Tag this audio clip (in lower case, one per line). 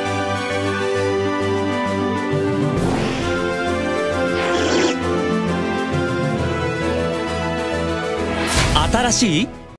speech
music